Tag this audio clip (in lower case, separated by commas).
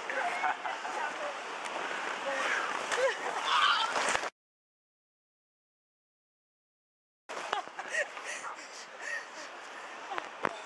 speech, whoop